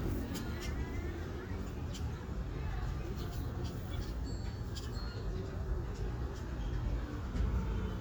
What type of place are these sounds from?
residential area